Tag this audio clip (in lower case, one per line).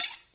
home sounds
cutlery